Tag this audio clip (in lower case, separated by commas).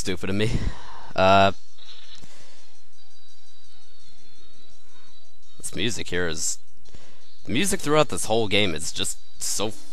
speech